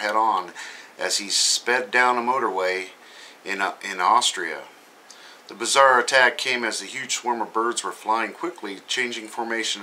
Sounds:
Speech

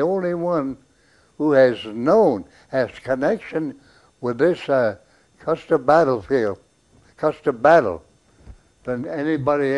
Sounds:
Speech

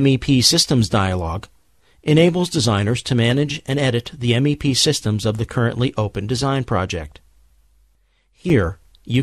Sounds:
Speech

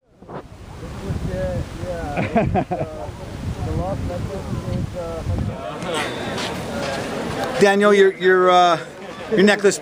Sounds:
Speech, outside, rural or natural

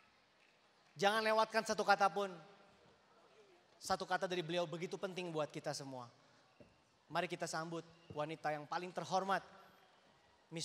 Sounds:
Speech, Male speech, monologue

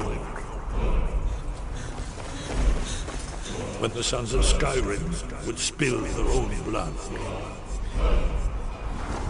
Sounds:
Speech, Music

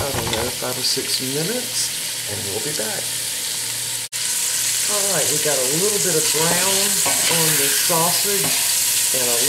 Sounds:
Frying (food), Sizzle, Stir

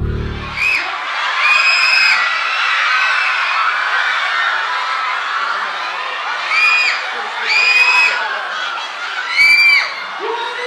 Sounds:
Speech, inside a large room or hall

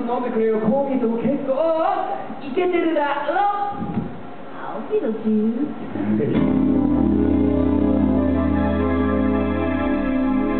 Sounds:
Music, Speech

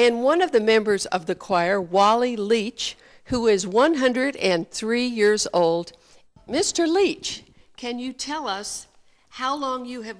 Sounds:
Speech

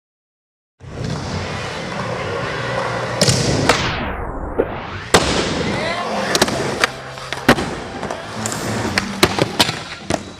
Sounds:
inside a large room or hall, Music

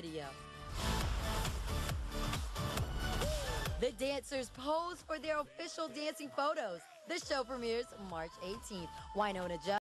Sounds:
Music, Speech, Disco

